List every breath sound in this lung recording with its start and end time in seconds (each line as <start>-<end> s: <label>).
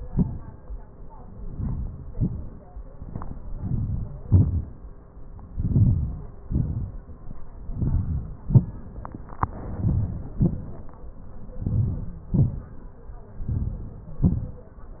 1.50-2.02 s: inhalation
2.19-2.69 s: exhalation
3.61-4.06 s: inhalation
4.25-4.69 s: exhalation
5.62-6.21 s: inhalation
6.49-7.08 s: exhalation
7.73-8.39 s: inhalation
8.64-9.12 s: exhalation
9.81-10.25 s: inhalation
10.39-10.82 s: exhalation
11.67-12.17 s: inhalation
12.36-12.80 s: exhalation
13.51-14.09 s: inhalation
14.27-14.74 s: exhalation